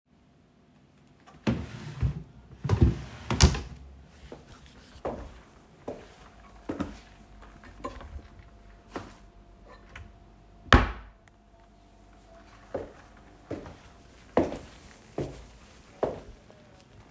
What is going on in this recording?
I opened and closed a wardrobe drawer while moving around the room.